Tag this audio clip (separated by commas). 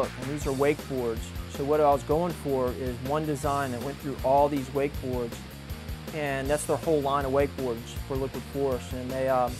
Speech, Music